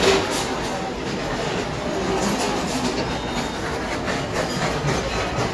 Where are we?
in a restaurant